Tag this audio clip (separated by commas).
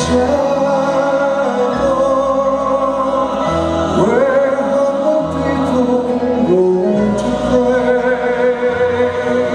Music